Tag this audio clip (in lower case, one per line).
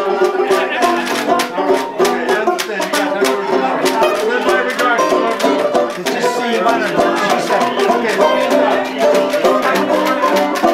music
happy music
speech